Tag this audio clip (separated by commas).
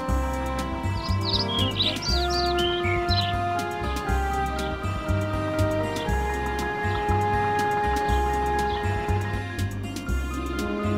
Music